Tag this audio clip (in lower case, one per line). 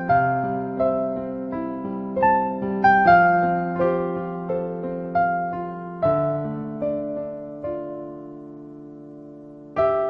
music